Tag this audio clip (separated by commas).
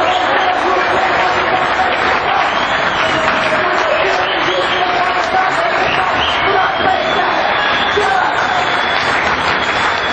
man speaking, Narration, Speech